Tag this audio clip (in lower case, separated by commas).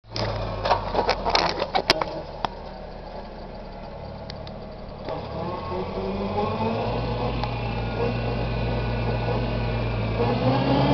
vehicle